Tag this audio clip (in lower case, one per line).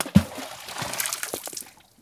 liquid
water
splash